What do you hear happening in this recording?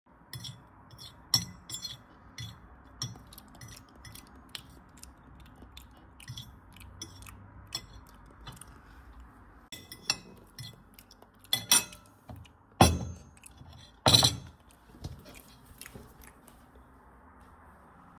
I was in the kitchen eating my food. I opened the cupboard, took out a plate, and we can hear the spoon sound against the plate while chewing.